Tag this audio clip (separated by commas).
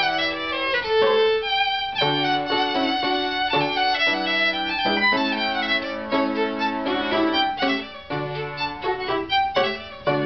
fiddle, Musical instrument, Music